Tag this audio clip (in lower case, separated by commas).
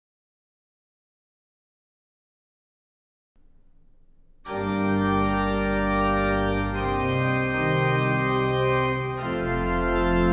keyboard (musical), organ, musical instrument, music